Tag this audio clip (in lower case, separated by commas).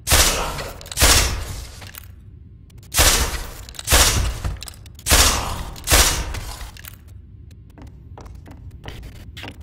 speech, inside a small room